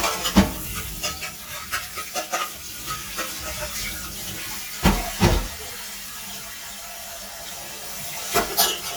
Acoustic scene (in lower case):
kitchen